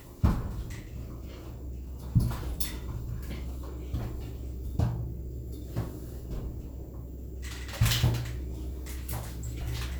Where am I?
in an elevator